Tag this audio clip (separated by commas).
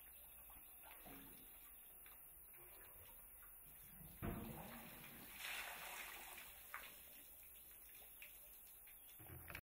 Stream